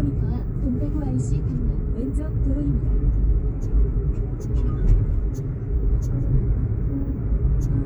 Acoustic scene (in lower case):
car